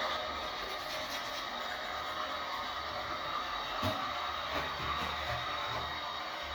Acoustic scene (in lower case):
restroom